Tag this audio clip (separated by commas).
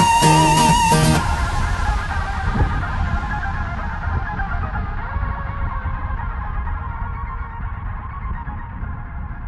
Music